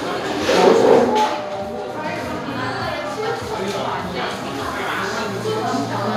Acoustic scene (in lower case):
cafe